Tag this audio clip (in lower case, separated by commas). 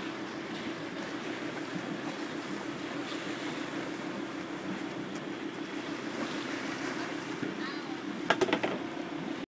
speech